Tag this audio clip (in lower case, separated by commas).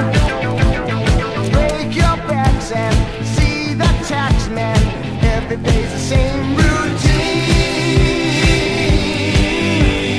independent music, rock music, music, rock and roll